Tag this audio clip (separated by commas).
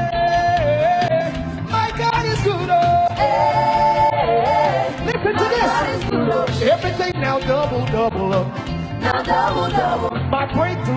Female singing, Choir, Male singing, Music